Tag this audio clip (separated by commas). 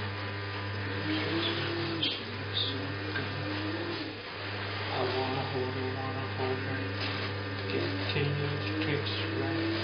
Male singing